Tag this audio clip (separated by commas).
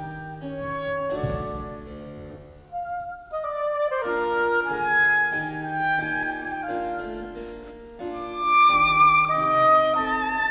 playing oboe